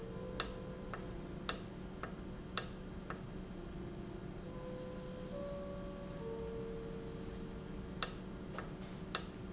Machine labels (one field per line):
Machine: valve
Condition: normal